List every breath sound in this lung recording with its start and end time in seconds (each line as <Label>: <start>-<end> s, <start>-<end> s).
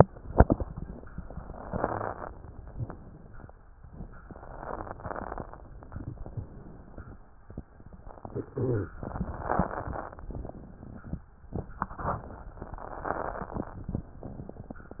Inhalation: 0.20-1.50 s, 3.81-5.88 s, 7.71-8.98 s, 11.53-12.54 s
Exhalation: 1.52-3.77 s, 5.88-7.72 s, 8.97-11.52 s, 12.53-14.63 s
Wheeze: 1.57-2.18 s, 4.50-5.00 s, 8.22-8.98 s
Crackles: 0.20-1.50 s, 3.81-5.88 s, 5.88-7.72 s, 8.97-11.52 s, 11.55-12.51 s, 12.53-14.63 s